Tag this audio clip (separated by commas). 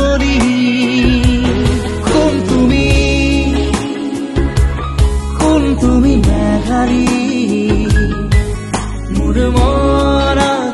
Music, Singing